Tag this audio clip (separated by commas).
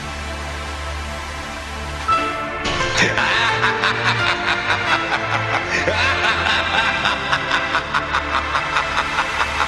Music